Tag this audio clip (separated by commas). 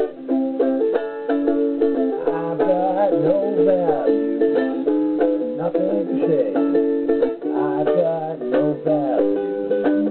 Ukulele, inside a small room, Music